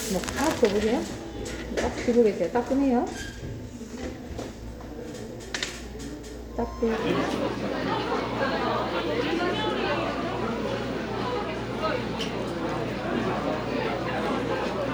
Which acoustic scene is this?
crowded indoor space